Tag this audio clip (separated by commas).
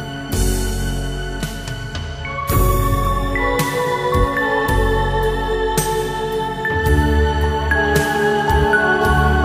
Background music